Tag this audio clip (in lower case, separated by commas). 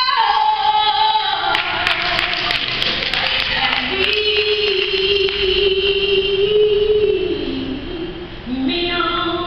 female singing, music